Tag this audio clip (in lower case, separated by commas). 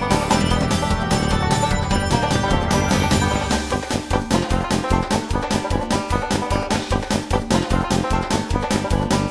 music, soundtrack music